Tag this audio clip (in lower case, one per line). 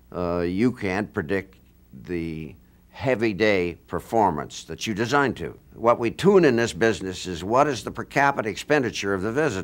speech